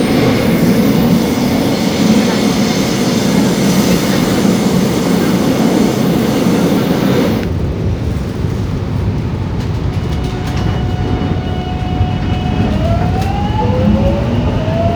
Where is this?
on a subway train